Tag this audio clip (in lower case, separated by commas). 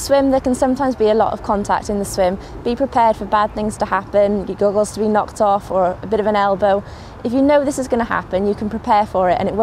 speech